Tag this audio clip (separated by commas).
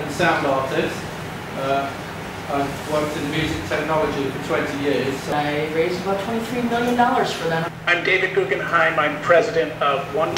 Speech